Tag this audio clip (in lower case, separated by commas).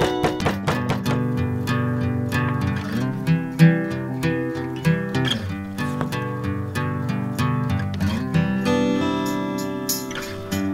music